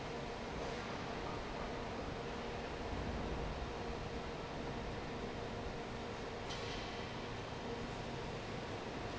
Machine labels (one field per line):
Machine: fan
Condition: normal